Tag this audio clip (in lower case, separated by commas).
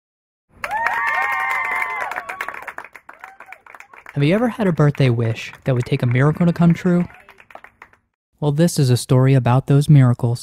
speech